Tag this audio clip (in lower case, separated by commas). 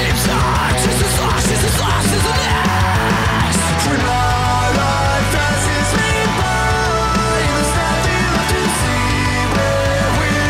music